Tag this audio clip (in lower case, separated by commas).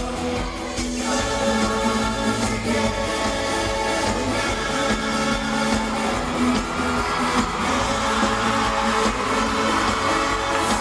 music